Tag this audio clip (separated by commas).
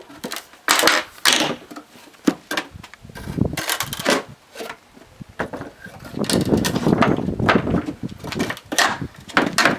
chopping wood